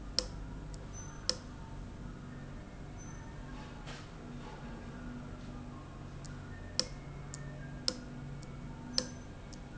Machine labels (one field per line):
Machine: valve